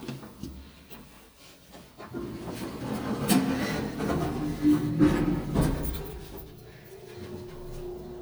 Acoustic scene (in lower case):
elevator